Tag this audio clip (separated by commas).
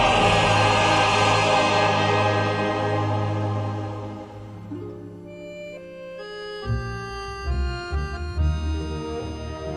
Soul music, Music